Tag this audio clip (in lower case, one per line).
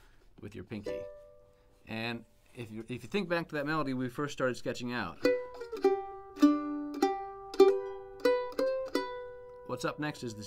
playing mandolin